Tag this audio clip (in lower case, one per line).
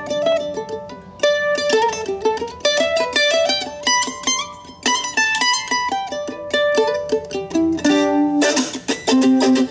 playing mandolin